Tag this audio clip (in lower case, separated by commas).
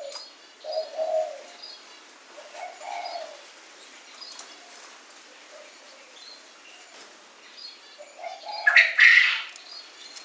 bird chirping, tweet, bird song, bird